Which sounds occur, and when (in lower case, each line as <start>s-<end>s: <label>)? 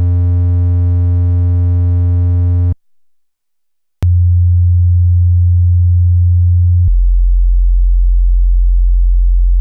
0.0s-2.7s: sine wave
4.0s-9.6s: sine wave